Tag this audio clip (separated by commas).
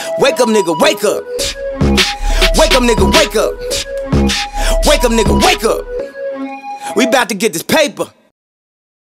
Music